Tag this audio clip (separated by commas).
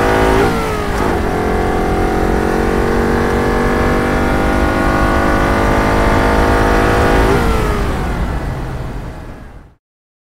Sound effect